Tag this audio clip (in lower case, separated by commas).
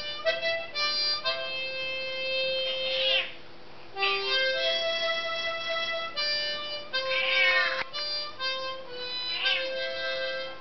animal, pets, meow, music, cat